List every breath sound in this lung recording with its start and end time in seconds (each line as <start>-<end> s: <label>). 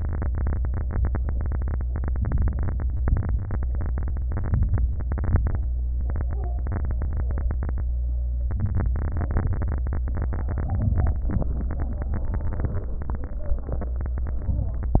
2.18-2.83 s: inhalation
3.01-3.66 s: exhalation
4.27-4.92 s: inhalation
5.04-5.70 s: exhalation
8.59-9.29 s: inhalation
9.34-10.04 s: exhalation
14.37-15.00 s: inhalation